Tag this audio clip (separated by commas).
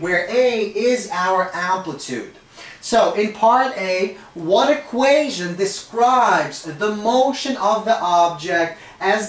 Speech